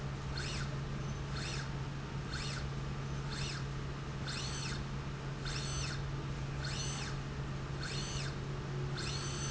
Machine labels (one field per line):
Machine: slide rail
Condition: normal